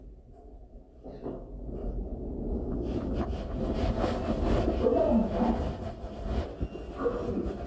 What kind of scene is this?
elevator